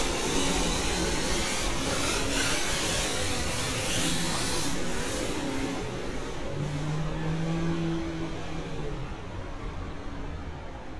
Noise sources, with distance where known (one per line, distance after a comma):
engine of unclear size, near
unidentified powered saw, near